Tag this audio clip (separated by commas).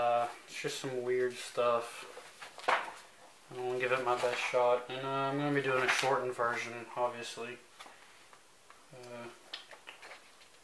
Speech